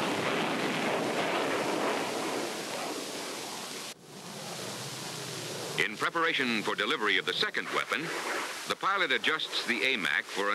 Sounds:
Speech, Pink noise, Aircraft, Fixed-wing aircraft, Vehicle

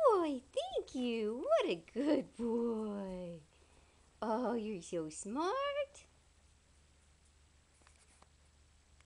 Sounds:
Speech

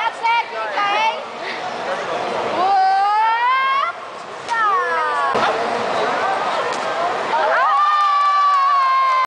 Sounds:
Speech

